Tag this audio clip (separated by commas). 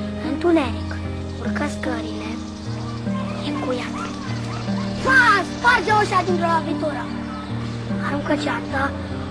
kid speaking, Speech, Music